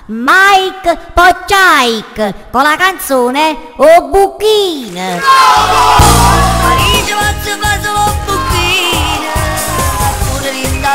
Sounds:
speech, music, dance music

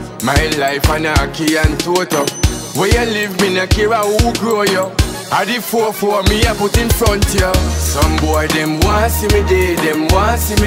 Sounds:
music

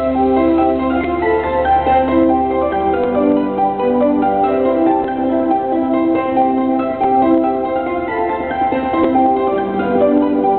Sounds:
christmas music, music

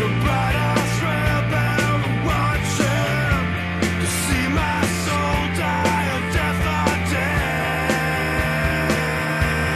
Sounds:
music, soundtrack music

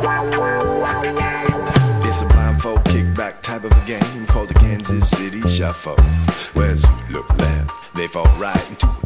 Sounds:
music

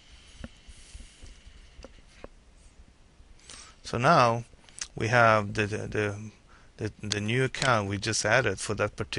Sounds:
speech

